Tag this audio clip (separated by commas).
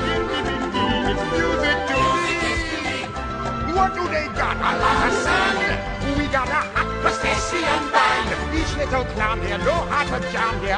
Music, Funny music